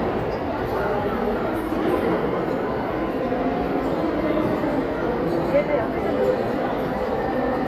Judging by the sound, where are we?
in a crowded indoor space